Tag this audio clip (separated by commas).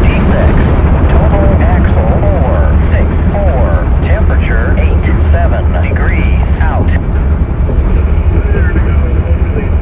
Heavy engine (low frequency), Vehicle, Speech